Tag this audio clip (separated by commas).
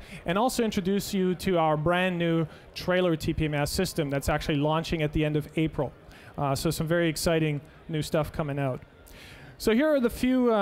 Speech